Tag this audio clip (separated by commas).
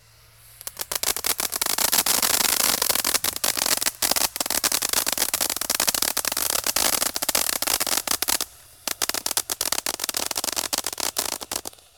Explosion, Fireworks